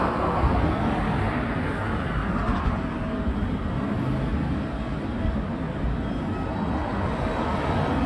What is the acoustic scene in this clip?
residential area